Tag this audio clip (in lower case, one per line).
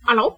human voice
speech
female speech